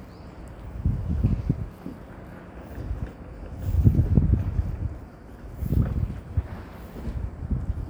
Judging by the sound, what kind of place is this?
residential area